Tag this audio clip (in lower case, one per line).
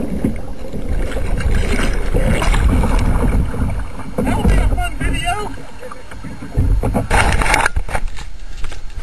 speech
canoe
boat